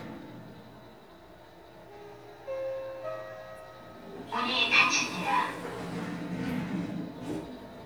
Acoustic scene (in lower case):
elevator